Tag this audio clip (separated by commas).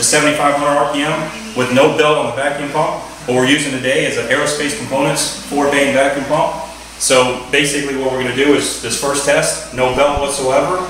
Speech